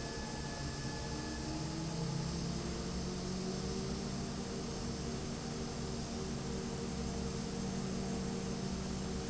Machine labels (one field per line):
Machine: fan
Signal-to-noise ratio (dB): -6 dB